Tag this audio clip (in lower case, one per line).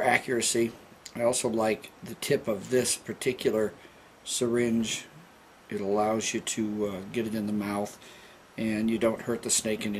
speech
inside a small room